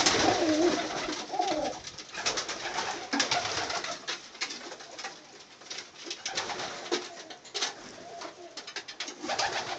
Birds coo and flap their wings